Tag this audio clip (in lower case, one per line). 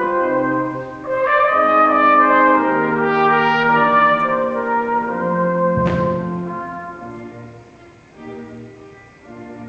music